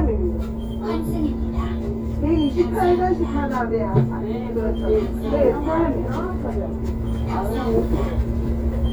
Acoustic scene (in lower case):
bus